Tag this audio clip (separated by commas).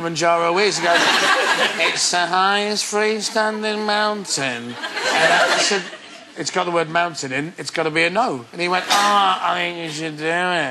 Speech